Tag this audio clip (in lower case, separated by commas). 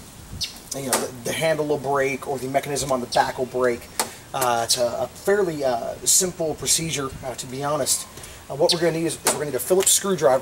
speech